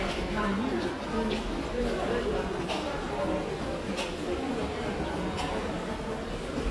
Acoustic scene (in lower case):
subway station